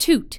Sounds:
human voice, woman speaking, speech

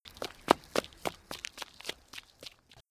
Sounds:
run

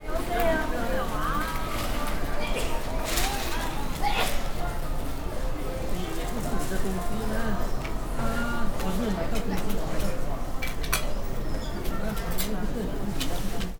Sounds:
sneeze, respiratory sounds

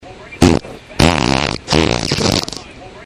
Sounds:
fart

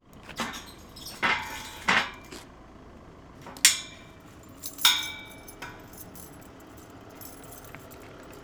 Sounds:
vehicle, bicycle

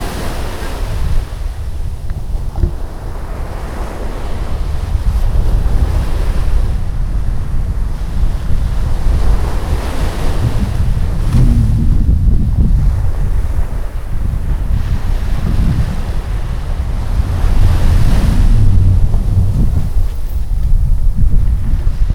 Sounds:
water, ocean

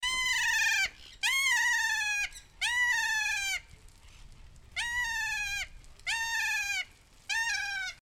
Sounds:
wild animals, bird, animal

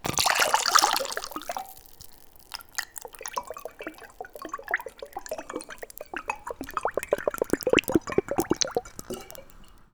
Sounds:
liquid

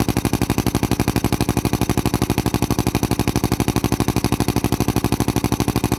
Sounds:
tools, power tool, drill

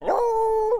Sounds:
dog, animal, pets

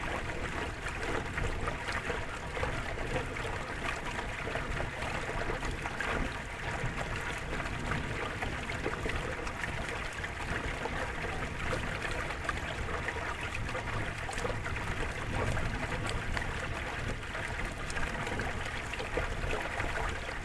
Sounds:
water, stream

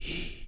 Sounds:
human voice, whispering

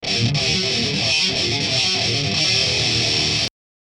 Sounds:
plucked string instrument, guitar, musical instrument, music

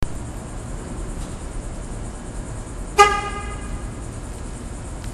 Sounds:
vehicle, car, alarm, motor vehicle (road), honking

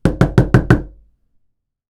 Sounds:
door, domestic sounds, knock

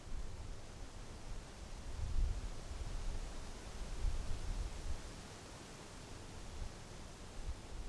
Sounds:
wind

